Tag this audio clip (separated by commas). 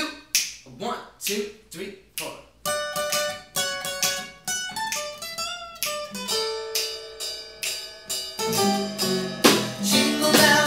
Speech, Music